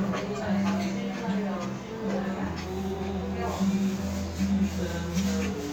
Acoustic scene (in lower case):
restaurant